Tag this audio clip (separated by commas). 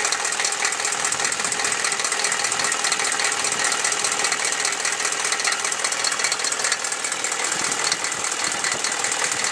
Vehicle, Engine